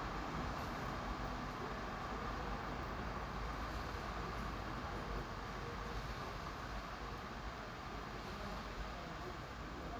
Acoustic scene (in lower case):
residential area